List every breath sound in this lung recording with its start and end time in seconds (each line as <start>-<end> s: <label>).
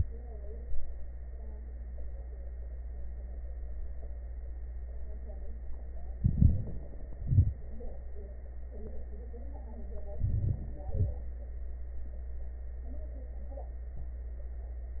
6.15-6.94 s: inhalation
7.04-7.83 s: exhalation
10.17-10.89 s: inhalation
10.89-11.29 s: exhalation